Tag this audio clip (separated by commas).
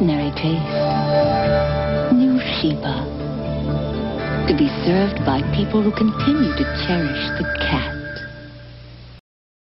Music, Speech